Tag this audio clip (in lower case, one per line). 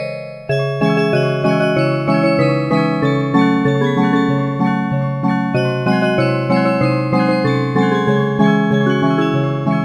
music